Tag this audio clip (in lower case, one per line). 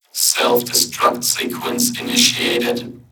speech
human voice